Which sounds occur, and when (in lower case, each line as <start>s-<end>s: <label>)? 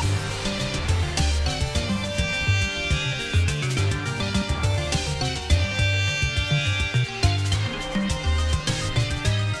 0.0s-9.6s: music